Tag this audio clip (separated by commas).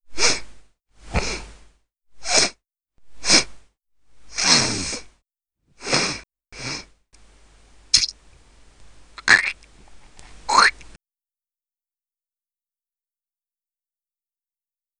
Respiratory sounds